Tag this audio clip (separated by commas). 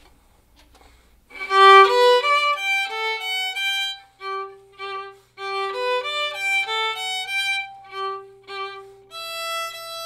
Musical instrument, Music, fiddle